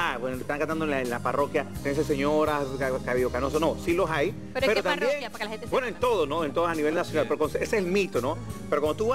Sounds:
music, speech

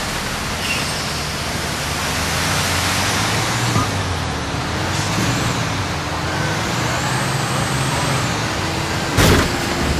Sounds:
air brake, truck

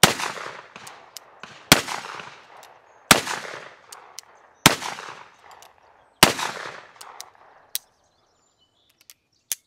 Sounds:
speech, outside, rural or natural

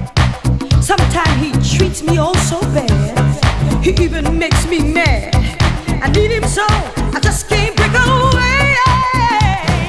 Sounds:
funk, music

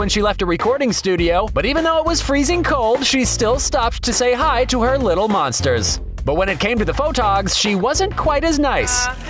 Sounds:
speech, music

